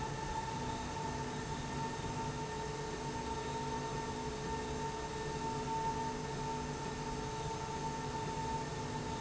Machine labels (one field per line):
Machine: slide rail